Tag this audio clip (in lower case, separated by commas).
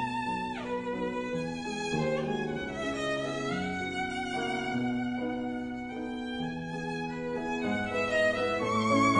violin, musical instrument, music